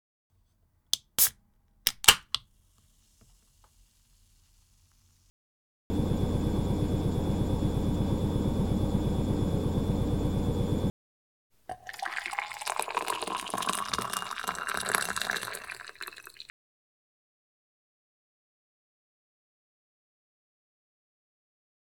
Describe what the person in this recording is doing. Handheld kitchen recording at lunch. Plates and cutlery handled, microwave started, tap used to rinse dishes while waiting.